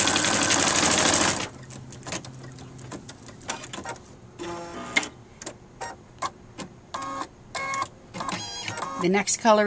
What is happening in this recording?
A sewing machine runs and a woman talks